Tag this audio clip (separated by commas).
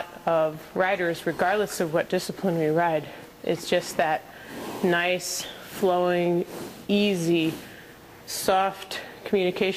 Speech